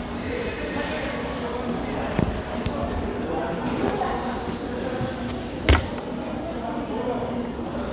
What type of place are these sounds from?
crowded indoor space